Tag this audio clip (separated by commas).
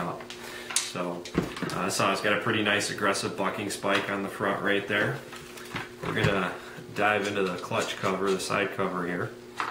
Speech